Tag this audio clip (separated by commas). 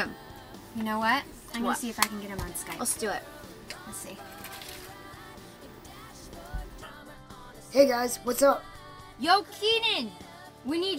Speech, Music